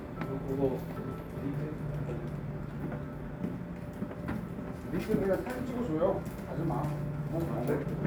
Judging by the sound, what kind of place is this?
cafe